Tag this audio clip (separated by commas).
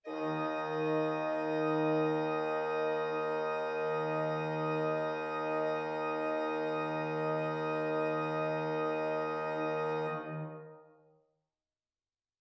Keyboard (musical), Musical instrument, Music, Organ